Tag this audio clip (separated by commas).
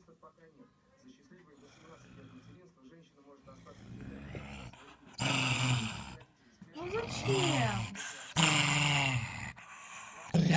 dog growling